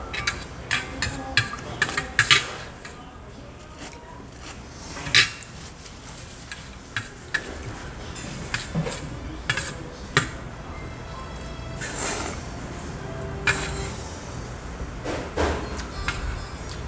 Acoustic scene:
restaurant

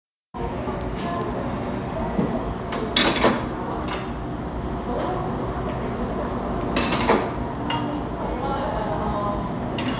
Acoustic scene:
cafe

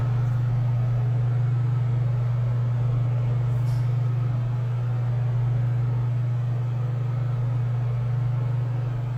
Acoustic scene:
elevator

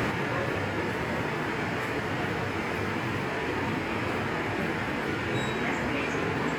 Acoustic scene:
subway station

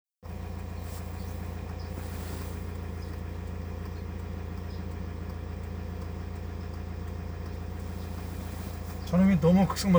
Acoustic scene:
car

